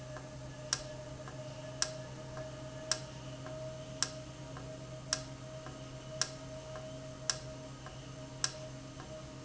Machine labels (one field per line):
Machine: valve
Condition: normal